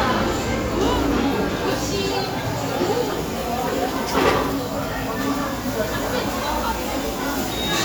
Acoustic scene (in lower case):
restaurant